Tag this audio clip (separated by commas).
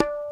Tabla, Music, Musical instrument, Percussion, Drum